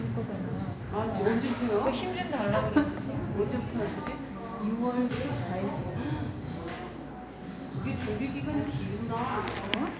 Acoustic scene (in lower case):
cafe